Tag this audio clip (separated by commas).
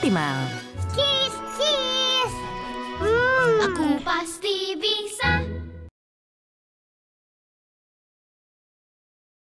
Music, Speech